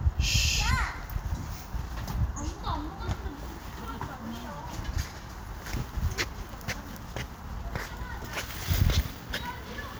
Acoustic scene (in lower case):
park